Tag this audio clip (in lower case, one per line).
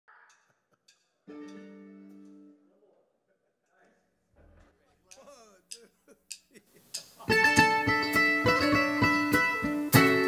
music
mandolin
musical instrument